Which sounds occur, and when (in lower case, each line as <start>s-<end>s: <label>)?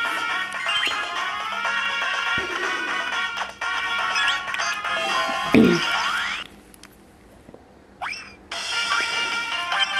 0.0s-6.4s: video game sound
0.0s-6.4s: music
6.4s-8.5s: background noise
8.0s-9.9s: video game sound
8.5s-9.9s: music